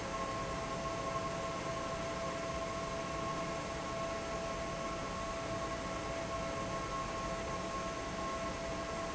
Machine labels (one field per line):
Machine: fan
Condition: normal